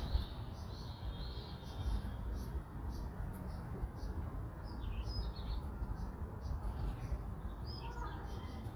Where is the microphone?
in a park